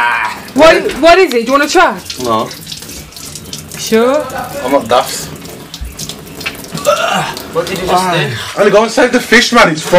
People are talking and water is dripping